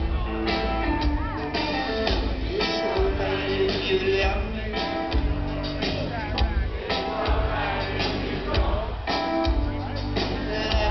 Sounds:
Speech, Music

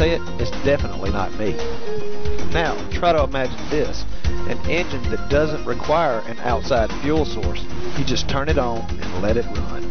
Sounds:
Speech, Music

